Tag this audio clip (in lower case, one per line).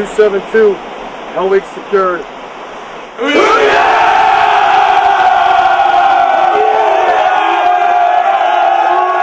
battle cry
crowd